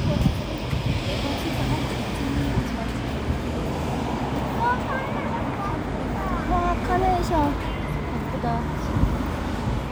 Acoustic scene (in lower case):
residential area